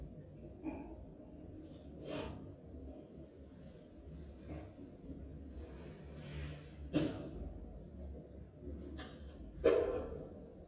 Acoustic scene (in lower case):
elevator